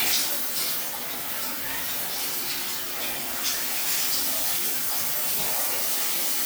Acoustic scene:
restroom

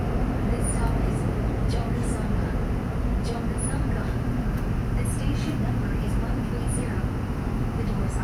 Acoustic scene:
subway train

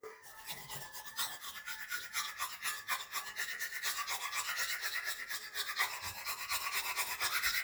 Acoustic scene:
restroom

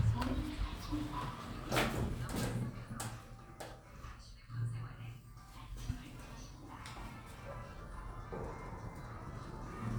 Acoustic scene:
elevator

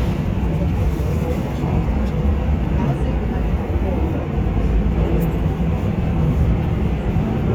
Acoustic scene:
subway train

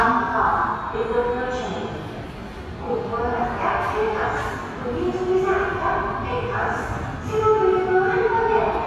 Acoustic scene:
subway station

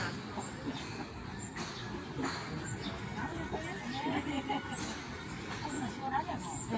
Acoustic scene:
park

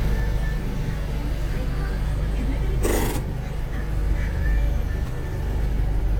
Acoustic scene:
bus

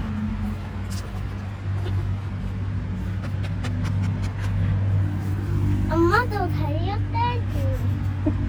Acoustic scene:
residential area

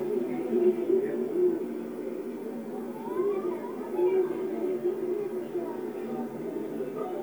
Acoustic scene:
park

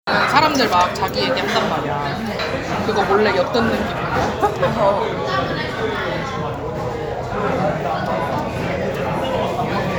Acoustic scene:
restaurant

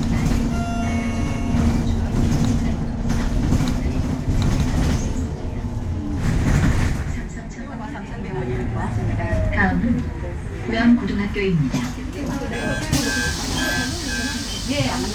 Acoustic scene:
bus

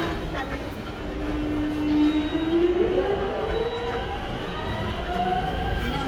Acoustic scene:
subway station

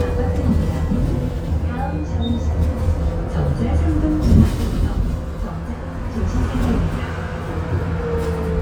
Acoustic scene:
bus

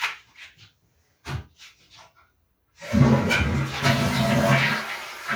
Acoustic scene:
restroom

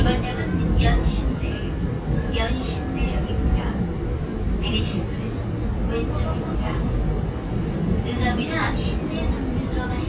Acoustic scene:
subway train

